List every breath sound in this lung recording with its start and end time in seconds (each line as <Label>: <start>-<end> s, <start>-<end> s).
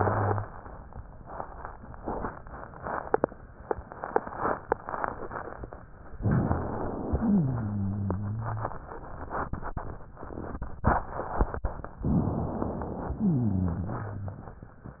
Inhalation: 6.19-7.16 s, 12.03-13.19 s
Rhonchi: 7.15-8.86 s, 13.19-14.46 s